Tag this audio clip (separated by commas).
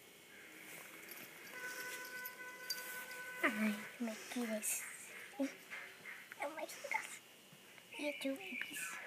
Speech